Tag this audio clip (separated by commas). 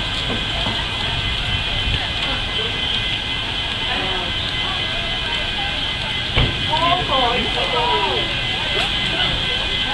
Speech, Vehicle